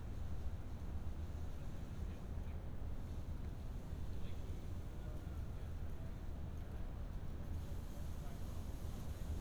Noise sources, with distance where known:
unidentified human voice, far

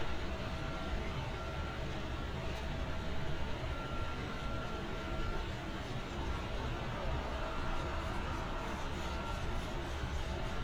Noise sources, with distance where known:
large-sounding engine

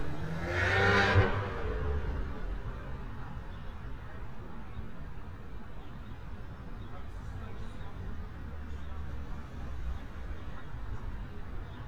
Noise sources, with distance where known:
medium-sounding engine, near
person or small group talking, far

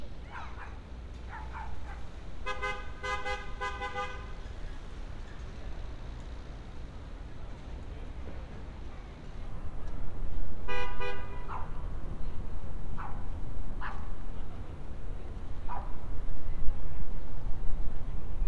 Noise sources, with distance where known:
car horn, near
dog barking or whining, far

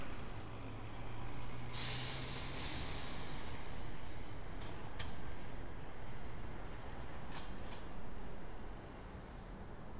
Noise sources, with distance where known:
engine of unclear size, far

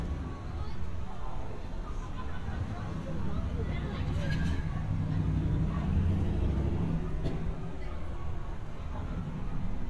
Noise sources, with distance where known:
medium-sounding engine
unidentified human voice, far

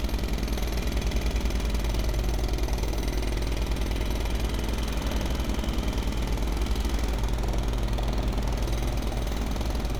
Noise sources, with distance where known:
jackhammer, near

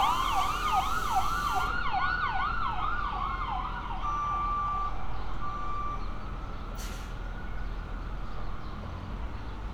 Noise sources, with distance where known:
siren, near
reverse beeper, near

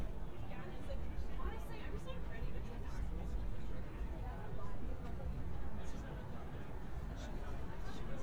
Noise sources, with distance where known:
person or small group talking

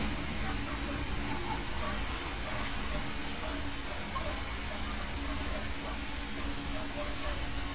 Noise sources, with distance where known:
dog barking or whining, far

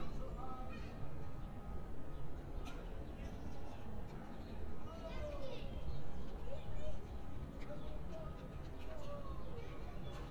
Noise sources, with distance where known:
person or small group shouting, far

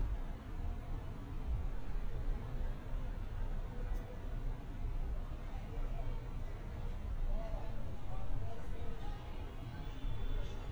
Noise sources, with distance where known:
person or small group talking

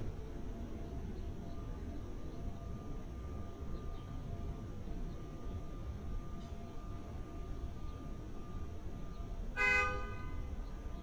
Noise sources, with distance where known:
car horn, near

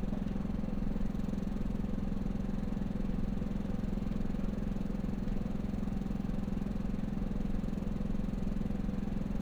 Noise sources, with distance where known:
engine of unclear size

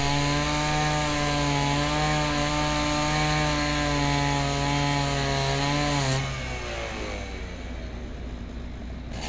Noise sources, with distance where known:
unidentified powered saw, near

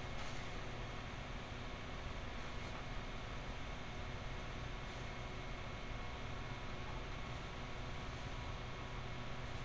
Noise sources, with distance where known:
background noise

